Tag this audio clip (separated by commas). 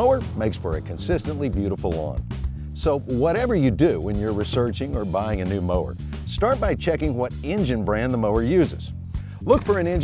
Speech, Music